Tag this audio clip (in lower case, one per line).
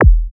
percussion
bass drum
music
drum
musical instrument